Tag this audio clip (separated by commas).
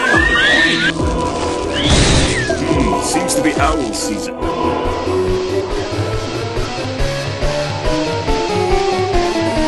Speech, Music